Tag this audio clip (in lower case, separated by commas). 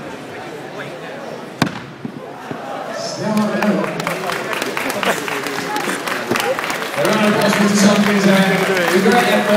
thwack